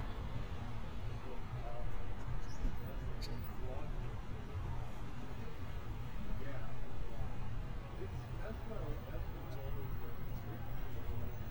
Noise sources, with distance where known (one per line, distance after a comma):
person or small group talking, near